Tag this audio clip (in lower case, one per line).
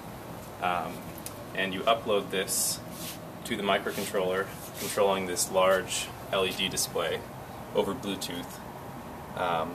speech